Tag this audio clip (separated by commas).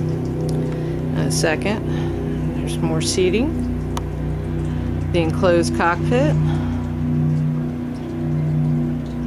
Speech